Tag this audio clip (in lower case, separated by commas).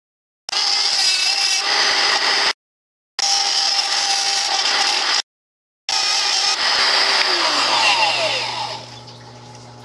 power tool, tools